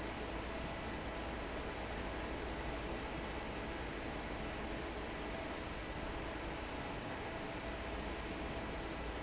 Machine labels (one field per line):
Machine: fan